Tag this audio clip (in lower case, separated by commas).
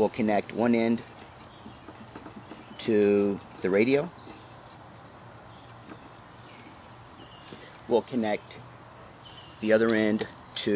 insect, speech, radio